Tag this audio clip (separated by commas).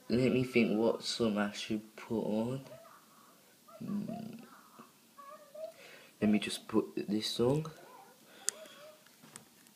Speech